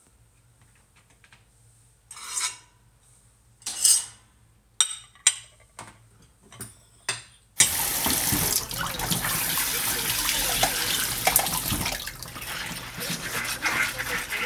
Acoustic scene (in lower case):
kitchen